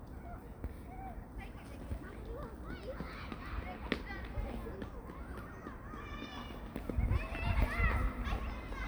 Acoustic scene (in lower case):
park